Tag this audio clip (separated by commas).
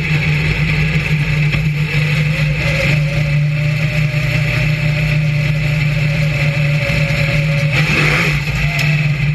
Vehicle